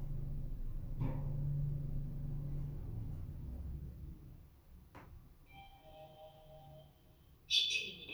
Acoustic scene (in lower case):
elevator